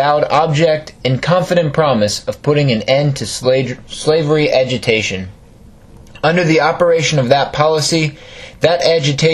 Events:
[0.00, 0.88] male speech
[0.00, 9.33] background noise
[1.03, 5.33] male speech
[6.03, 6.20] human sounds
[6.20, 8.11] male speech
[8.09, 8.62] breathing
[8.63, 9.33] male speech

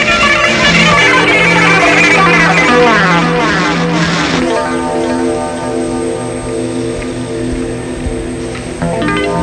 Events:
[0.00, 4.66] sound effect
[0.00, 9.42] background noise
[0.00, 9.42] music
[6.97, 7.03] tick
[8.50, 8.54] tick

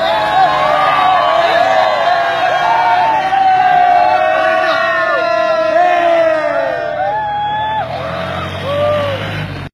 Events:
[0.00, 9.18] cheering
[0.00, 9.73] motor vehicle (road)

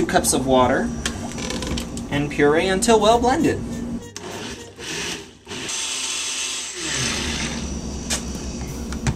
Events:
[0.00, 0.68] gurgling
[0.00, 3.96] mechanisms
[0.06, 0.85] male speech
[0.98, 1.11] generic impact sounds
[1.05, 1.29] gurgling
[1.23, 1.81] generic impact sounds
[1.91, 1.98] generic impact sounds
[3.39, 4.13] music
[4.11, 4.22] clicking
[4.14, 4.65] blender
[4.53, 4.73] music
[4.75, 5.29] blender
[5.46, 7.74] blender
[6.92, 9.15] mechanisms
[8.07, 8.18] hiss
[8.55, 8.62] generic impact sounds
[8.87, 8.95] generic impact sounds
[9.04, 9.11] generic impact sounds

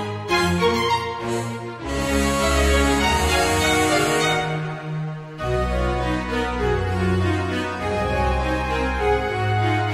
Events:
[0.00, 9.93] music

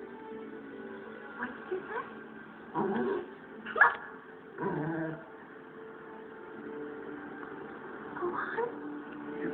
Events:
[0.00, 9.53] music
[0.00, 9.53] television
[1.34, 2.06] female speech
[2.70, 3.25] dog
[2.89, 3.00] generic impact sounds
[3.61, 4.07] dog
[3.75, 3.97] generic impact sounds
[4.54, 5.17] dog
[7.38, 7.46] generic impact sounds
[8.13, 8.72] female speech
[9.00, 9.15] generic impact sounds

